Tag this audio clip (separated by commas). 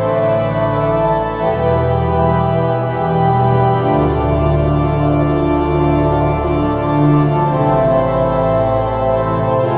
Organ, Hammond organ